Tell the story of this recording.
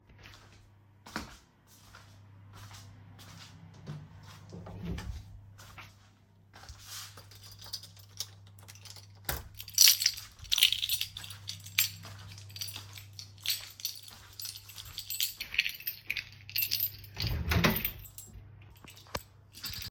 I went to the door pulled out my keys, took them with me and went to close the window.